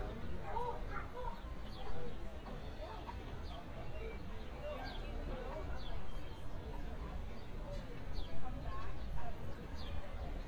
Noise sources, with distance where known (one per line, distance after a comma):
person or small group talking
dog barking or whining, far